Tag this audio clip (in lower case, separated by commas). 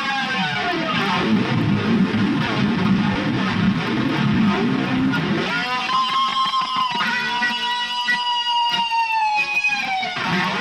music, electric guitar, strum, musical instrument, guitar, plucked string instrument